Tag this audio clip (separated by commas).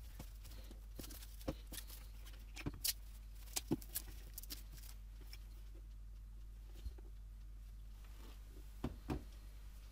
inside a small room, Silence